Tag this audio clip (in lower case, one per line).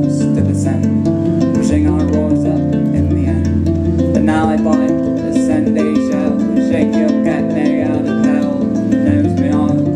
music
musical instrument
plucked string instrument